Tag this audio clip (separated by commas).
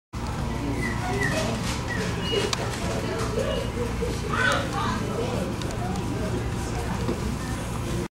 Speech